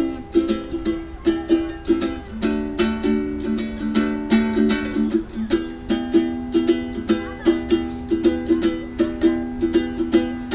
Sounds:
playing ukulele

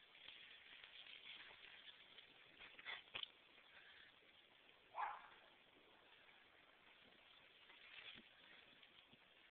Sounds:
Animal, Domestic animals

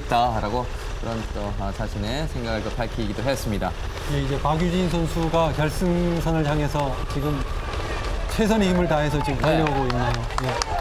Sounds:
Run, outside, urban or man-made, Speech

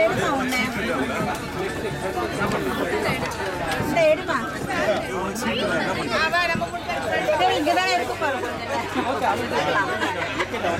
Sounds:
Speech

